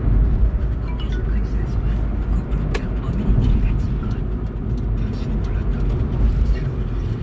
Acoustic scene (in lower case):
car